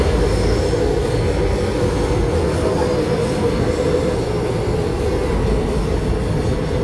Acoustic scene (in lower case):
subway train